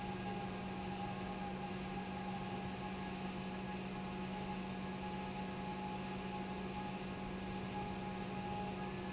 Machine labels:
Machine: pump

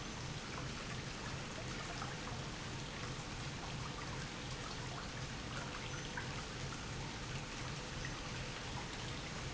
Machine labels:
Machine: pump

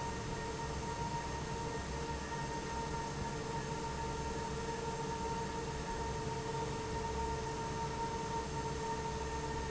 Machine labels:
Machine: fan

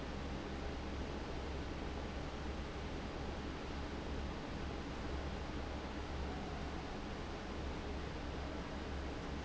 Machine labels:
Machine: fan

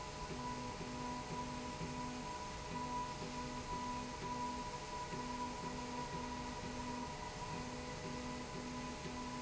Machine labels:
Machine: slide rail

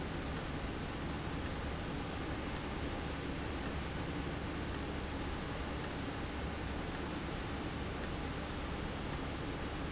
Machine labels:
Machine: valve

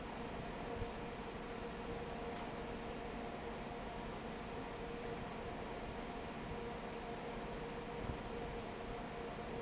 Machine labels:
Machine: fan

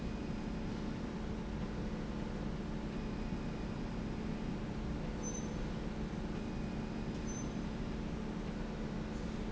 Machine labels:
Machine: slide rail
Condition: normal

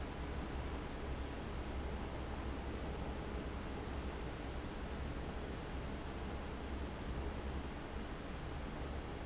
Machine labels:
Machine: fan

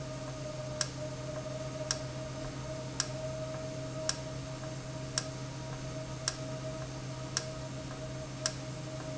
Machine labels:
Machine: valve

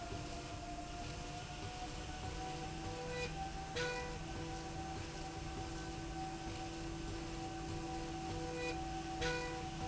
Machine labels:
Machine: slide rail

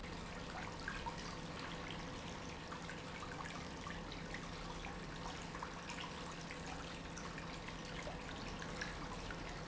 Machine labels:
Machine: pump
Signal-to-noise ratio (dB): 6 dB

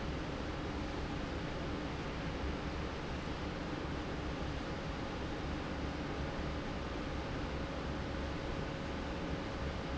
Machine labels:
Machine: fan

